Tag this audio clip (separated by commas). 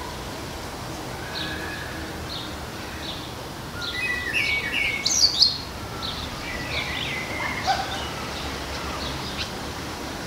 tweeting